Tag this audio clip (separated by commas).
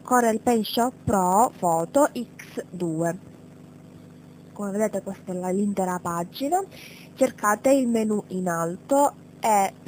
Speech